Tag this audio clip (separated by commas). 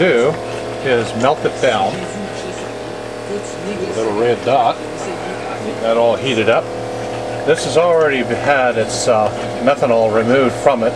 Speech